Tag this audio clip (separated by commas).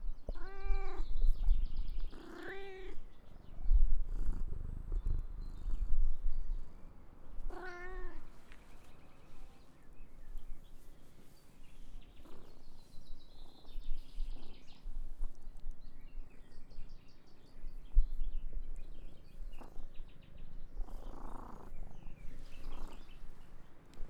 Animal, Meow, Cat, Domestic animals, Purr